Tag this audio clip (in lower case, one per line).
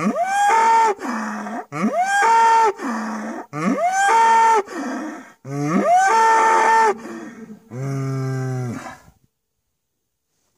bull bellowing